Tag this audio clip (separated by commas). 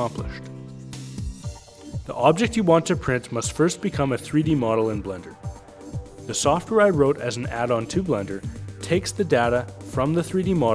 Speech, Music